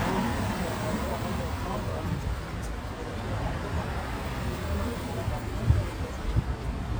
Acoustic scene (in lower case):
street